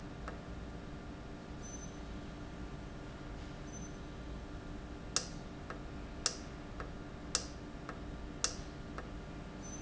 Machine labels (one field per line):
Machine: valve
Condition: normal